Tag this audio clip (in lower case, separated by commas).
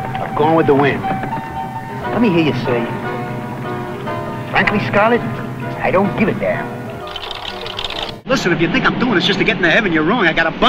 music, speech